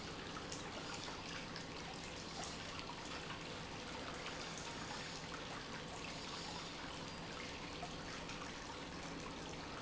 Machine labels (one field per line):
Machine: pump